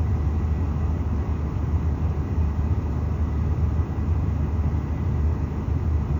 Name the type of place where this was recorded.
car